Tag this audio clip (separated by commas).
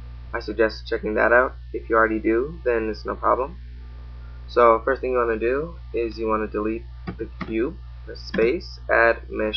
Speech